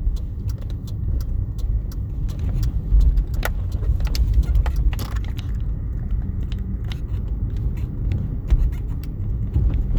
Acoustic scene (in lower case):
car